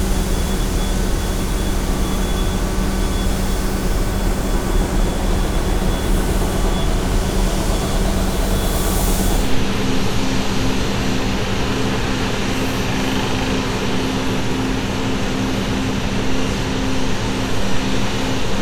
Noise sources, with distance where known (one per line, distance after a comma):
unidentified impact machinery